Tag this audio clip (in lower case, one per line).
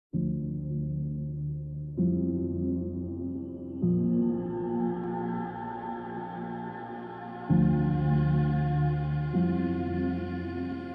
ambient music